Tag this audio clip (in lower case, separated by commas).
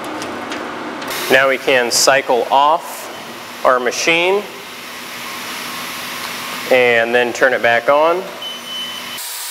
inside a small room, speech